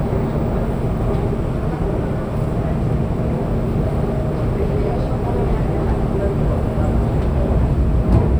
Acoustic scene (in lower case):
subway train